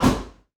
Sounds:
Thump

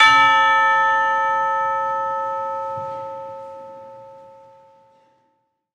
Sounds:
Percussion, Musical instrument, Music

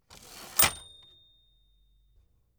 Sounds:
home sounds, Typewriter, Typing

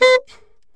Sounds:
woodwind instrument, Musical instrument, Music

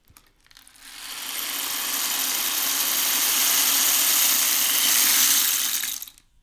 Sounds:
Music, Musical instrument, Percussion, Rattle (instrument)

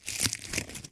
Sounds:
crinkling

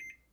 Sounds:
home sounds, Microwave oven

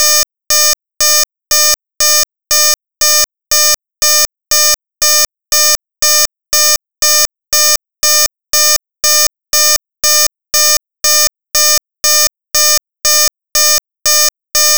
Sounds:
Alarm

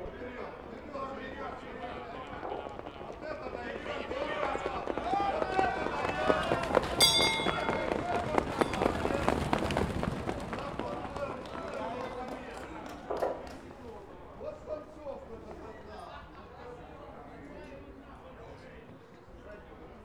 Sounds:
livestock, Animal

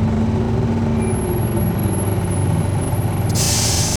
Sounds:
Motor vehicle (road), Vehicle, Engine, Bus

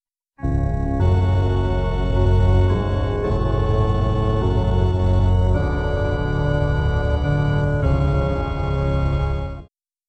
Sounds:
Keyboard (musical), Organ, Musical instrument, Music

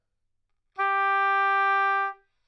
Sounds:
Music, Musical instrument, woodwind instrument

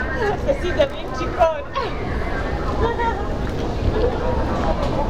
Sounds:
Laughter, Human voice

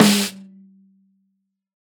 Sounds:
Snare drum, Percussion, Drum, Music, Musical instrument

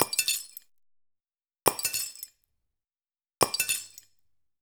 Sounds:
Shatter, Glass

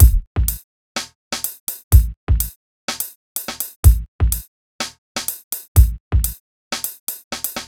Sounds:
Snare drum, Percussion, Drum, Drum kit, Musical instrument, Music

